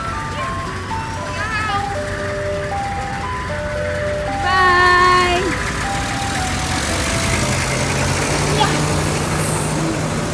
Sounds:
ice cream truck

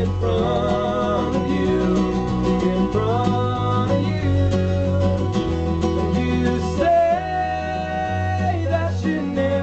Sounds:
music

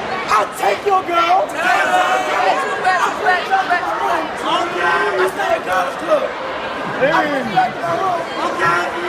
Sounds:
speech

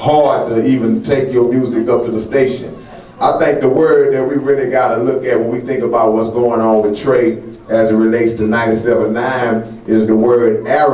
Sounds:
speech

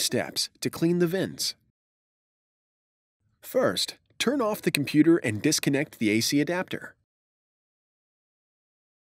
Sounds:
speech

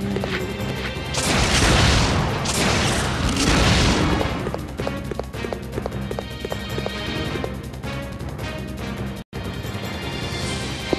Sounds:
run, music

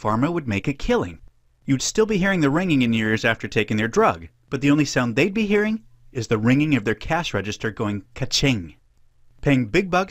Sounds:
speech

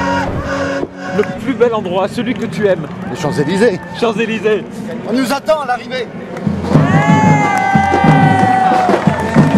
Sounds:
outside, urban or man-made, music, speech

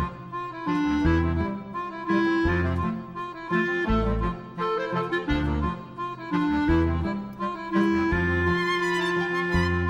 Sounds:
music

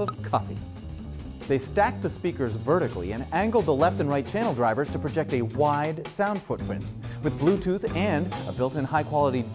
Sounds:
speech, music

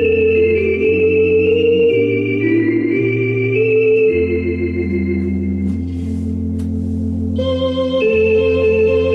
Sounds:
hammond organ, organ

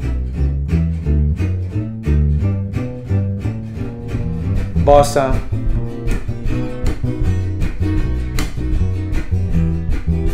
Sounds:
playing double bass

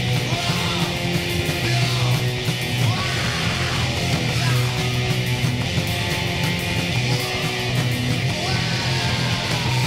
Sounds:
punk rock, music

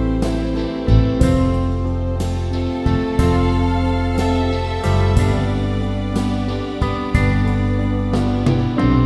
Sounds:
music, tender music

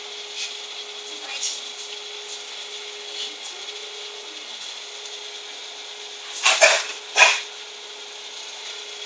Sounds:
speech, domestic animals, animal, dog

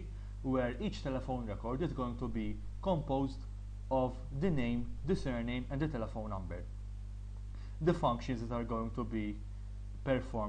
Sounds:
speech

